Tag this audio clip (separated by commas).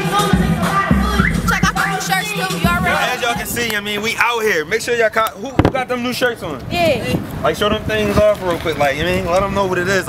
Speech, Music